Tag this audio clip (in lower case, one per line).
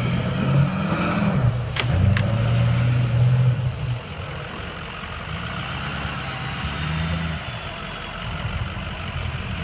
vehicle
speech
truck
outside, urban or man-made